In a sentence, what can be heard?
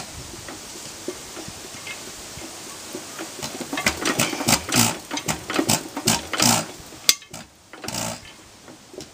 Metal clanking of engine starting